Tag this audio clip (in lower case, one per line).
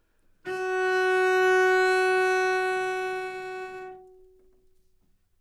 bowed string instrument
music
musical instrument